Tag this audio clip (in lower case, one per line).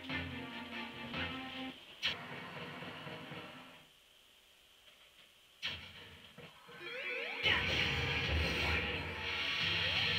music